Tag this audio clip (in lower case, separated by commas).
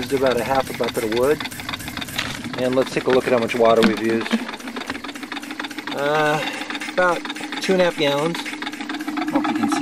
engine, speech